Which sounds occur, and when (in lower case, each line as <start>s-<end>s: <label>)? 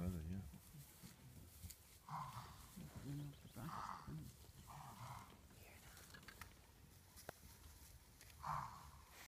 0.0s-0.5s: male speech
0.0s-6.1s: conversation
0.0s-9.2s: rustle
0.5s-0.8s: human voice
1.0s-1.5s: human voice
1.6s-1.8s: generic impact sounds
2.0s-2.6s: animal
2.2s-2.3s: generic impact sounds
2.7s-3.7s: male speech
3.0s-3.7s: bird vocalization
3.5s-4.1s: animal
4.0s-4.2s: male speech
4.6s-5.3s: animal
5.4s-6.1s: whispering
5.9s-6.4s: generic impact sounds
7.1s-7.3s: generic impact sounds
8.2s-8.3s: generic impact sounds
8.4s-8.9s: animal